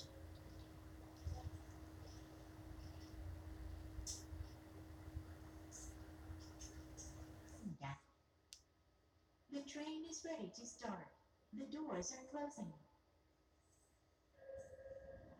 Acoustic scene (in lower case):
subway train